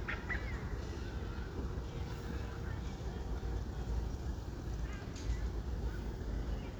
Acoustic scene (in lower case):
residential area